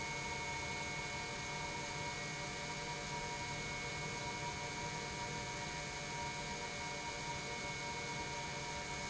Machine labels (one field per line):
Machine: pump